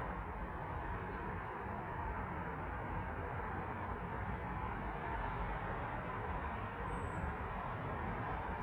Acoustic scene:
street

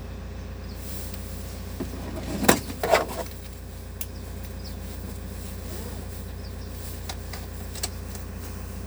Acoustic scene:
car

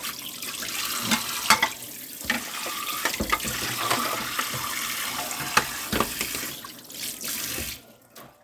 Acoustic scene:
kitchen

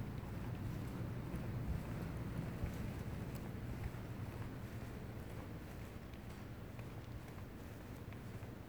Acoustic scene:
residential area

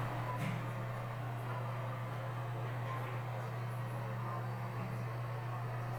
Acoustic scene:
elevator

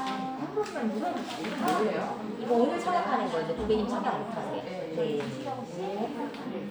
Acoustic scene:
crowded indoor space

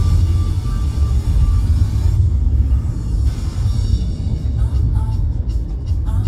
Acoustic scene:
car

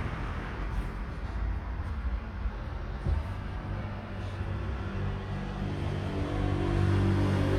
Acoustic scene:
street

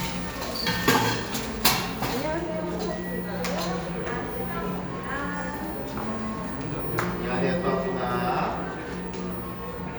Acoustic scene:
cafe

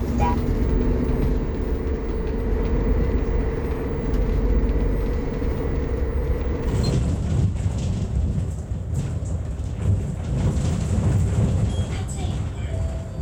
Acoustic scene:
bus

